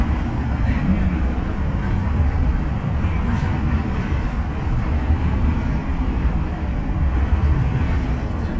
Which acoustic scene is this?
bus